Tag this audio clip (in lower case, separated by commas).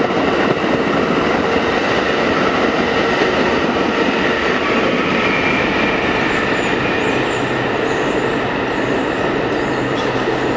clickety-clack, train, underground, rail transport, train wagon